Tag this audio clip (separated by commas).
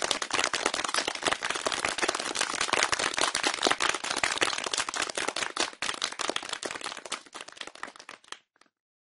Crowd